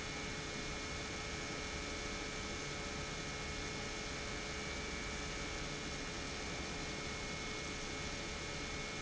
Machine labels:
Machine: pump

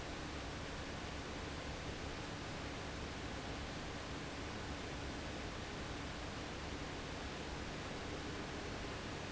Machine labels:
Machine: fan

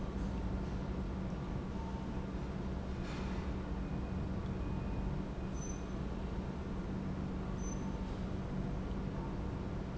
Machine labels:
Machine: pump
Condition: normal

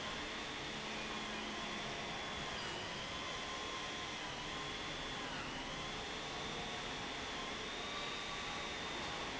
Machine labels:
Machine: pump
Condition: abnormal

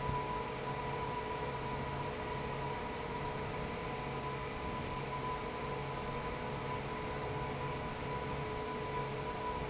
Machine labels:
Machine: fan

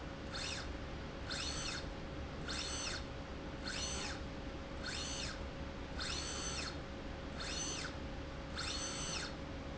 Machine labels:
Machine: slide rail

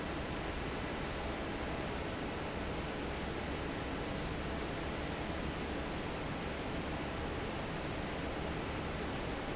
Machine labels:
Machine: fan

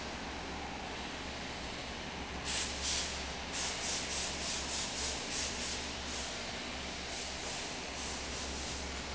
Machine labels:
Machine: fan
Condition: abnormal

